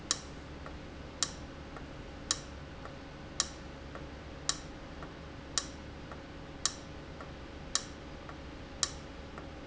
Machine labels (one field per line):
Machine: valve